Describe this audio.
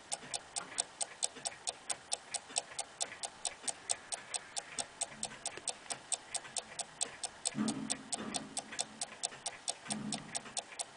A regular fast ticking